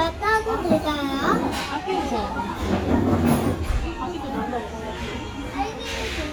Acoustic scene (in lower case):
restaurant